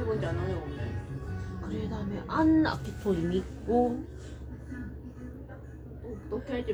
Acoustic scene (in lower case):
cafe